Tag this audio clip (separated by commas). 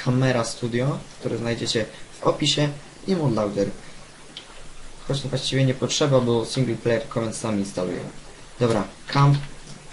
Speech